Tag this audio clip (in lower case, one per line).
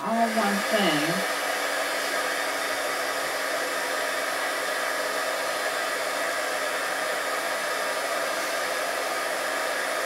speech
inside a small room